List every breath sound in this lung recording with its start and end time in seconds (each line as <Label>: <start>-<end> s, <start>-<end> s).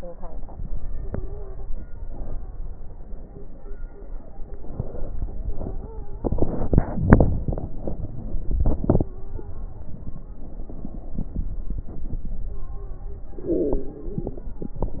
Inhalation: 4.42-5.53 s, 10.29-11.65 s, 13.36-14.47 s
Stridor: 0.89-1.65 s, 5.37-6.24 s, 9.07-9.93 s
Crackles: 10.29-11.65 s